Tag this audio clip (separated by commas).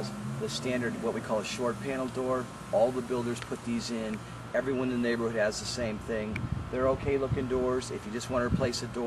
Speech